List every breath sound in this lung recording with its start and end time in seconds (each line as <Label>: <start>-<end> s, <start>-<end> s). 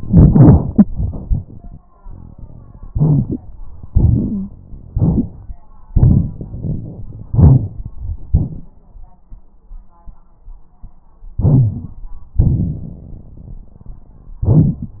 Inhalation: 2.88-3.40 s, 4.91-5.54 s, 7.25-7.91 s, 11.38-12.04 s
Exhalation: 3.89-4.59 s, 5.90-7.02 s, 8.35-8.97 s, 12.43-14.39 s
Wheeze: 4.31-4.51 s
Rhonchi: 11.38-11.86 s
Crackles: 2.88-3.40 s, 5.90-7.26 s